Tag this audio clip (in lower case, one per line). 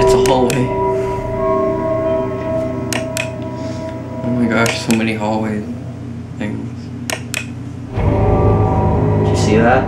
music
inside a small room
speech